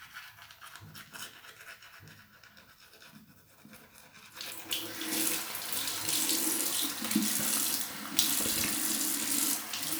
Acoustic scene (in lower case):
restroom